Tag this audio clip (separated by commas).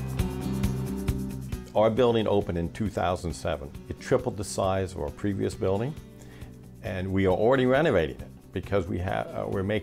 Speech, Music